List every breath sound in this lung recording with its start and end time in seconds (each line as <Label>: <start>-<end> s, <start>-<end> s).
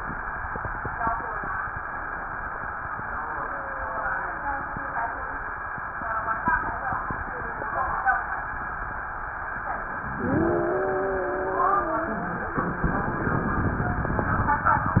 Wheeze: 3.15-5.56 s, 10.11-12.52 s